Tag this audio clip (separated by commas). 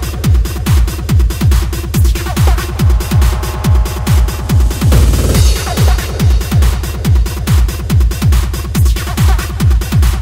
Dubstep, Music